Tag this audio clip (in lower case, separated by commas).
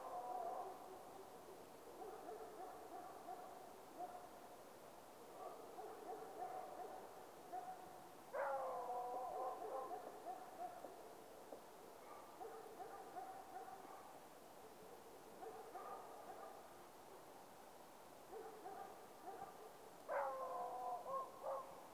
dog, pets, animal